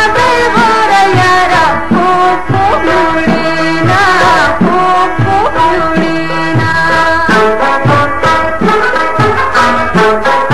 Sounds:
Music

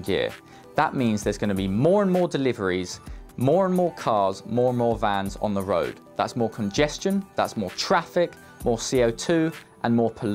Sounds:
Music, Speech

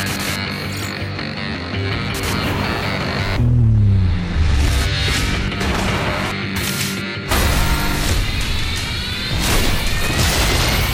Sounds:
Music

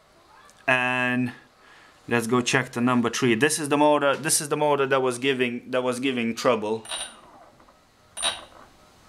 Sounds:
Speech

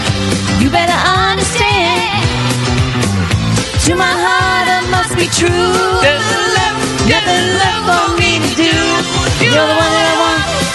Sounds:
Music, inside a large room or hall, Singing

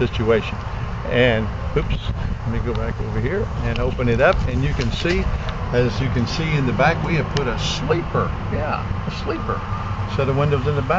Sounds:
Speech

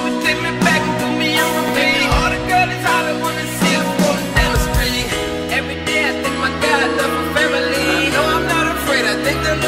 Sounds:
Music

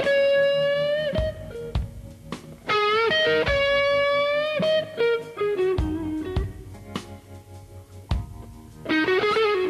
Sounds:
Plucked string instrument, Guitar, Electric guitar, Music, Musical instrument

